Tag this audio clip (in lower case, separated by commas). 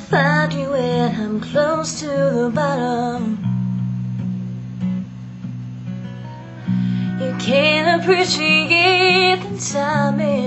female singing, music